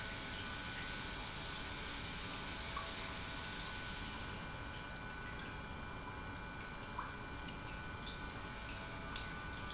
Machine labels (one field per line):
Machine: pump